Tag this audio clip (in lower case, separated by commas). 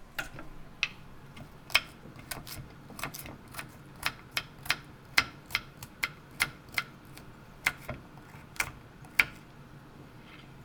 home sounds